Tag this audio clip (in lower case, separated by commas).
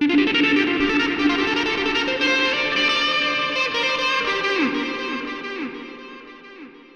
music, guitar, plucked string instrument, musical instrument